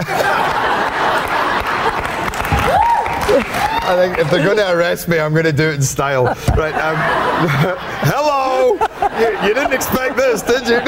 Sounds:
Speech

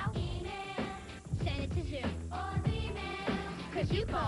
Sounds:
Music

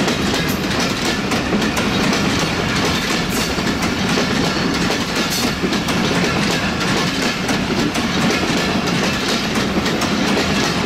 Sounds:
train whistling

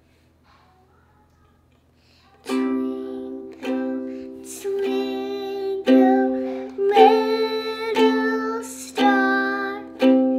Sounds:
playing ukulele

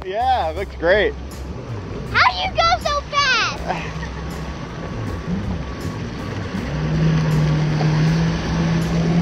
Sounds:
Water vehicle, Speech, Music, kayak, Vehicle

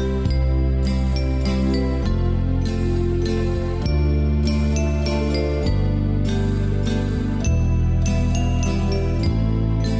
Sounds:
Music

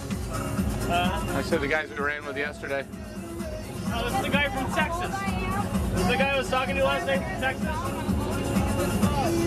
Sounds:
Speech, Music

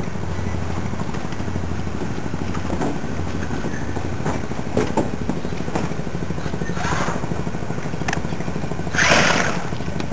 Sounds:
Boat, Motorboat

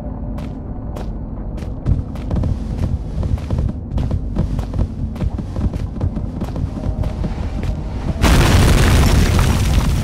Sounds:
outside, rural or natural

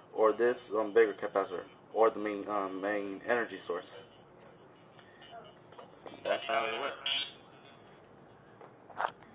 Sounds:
inside a small room, Speech

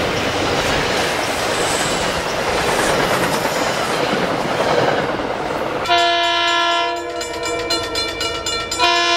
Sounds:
metro, Clickety-clack, train wagon, Train horn, Rail transport

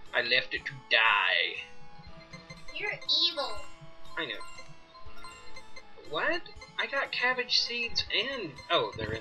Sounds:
Speech, Music

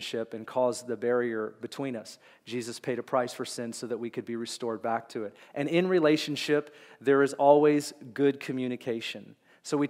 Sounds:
Speech

